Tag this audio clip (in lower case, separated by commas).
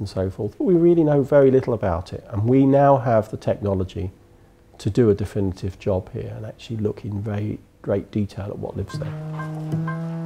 speech, music